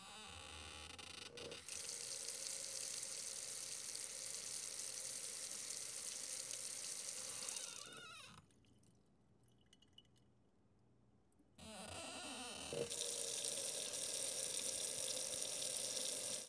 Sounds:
water tap
home sounds
sink (filling or washing)

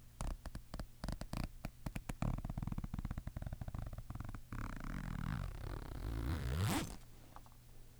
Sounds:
zipper (clothing)
home sounds

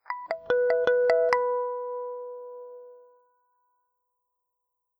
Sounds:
musical instrument
guitar
plucked string instrument
music

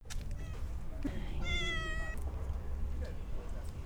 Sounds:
cat
animal
domestic animals

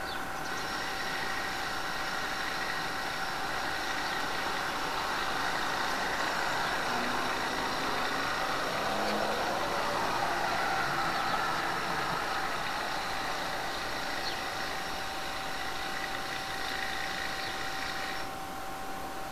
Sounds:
tools

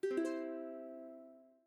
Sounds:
music
musical instrument
plucked string instrument

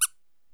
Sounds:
squeak

